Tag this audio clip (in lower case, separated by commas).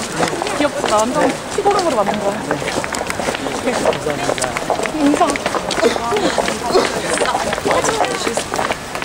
speech